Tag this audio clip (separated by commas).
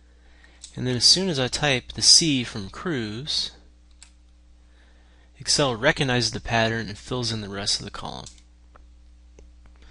Speech